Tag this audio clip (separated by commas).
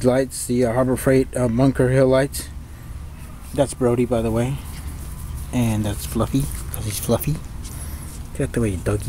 Speech